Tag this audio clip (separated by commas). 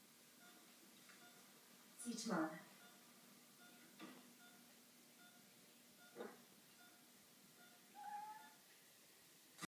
Animal, Speech, Cat, Domestic animals, Meow